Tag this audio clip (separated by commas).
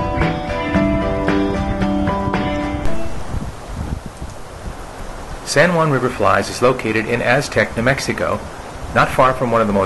Music, outside, rural or natural, Speech, Stream